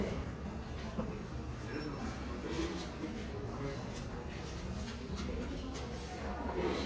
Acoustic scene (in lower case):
crowded indoor space